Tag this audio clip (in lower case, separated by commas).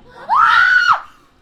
human voice, screaming